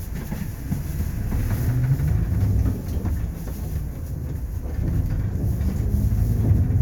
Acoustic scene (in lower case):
bus